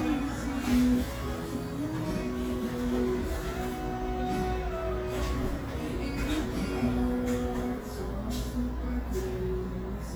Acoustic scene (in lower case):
cafe